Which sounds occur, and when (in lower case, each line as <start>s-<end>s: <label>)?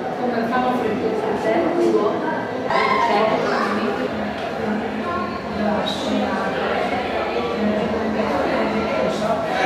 0.0s-2.6s: female speech
0.0s-9.6s: speech babble
2.7s-3.3s: shout
3.4s-4.3s: female speech
5.0s-5.4s: female speech
5.6s-6.0s: female speech
5.9s-6.1s: squeal
6.2s-7.2s: speech
6.6s-7.6s: man speaking
7.7s-9.3s: female speech